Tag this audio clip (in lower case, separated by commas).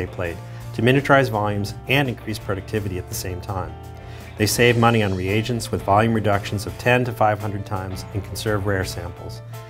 speech, music